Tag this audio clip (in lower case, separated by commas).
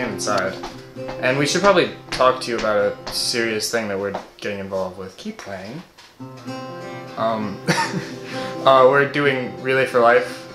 music, speech